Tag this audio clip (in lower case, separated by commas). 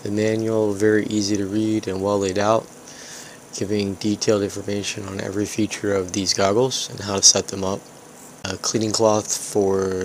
speech